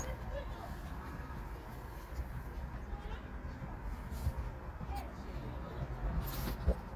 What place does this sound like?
park